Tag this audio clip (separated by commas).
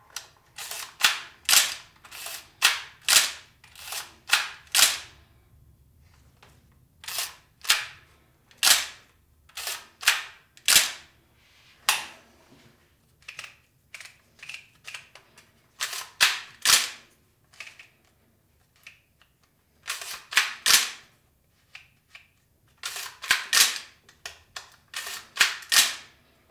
Mechanisms, Camera